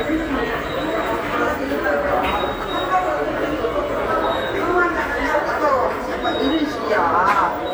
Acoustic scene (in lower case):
subway station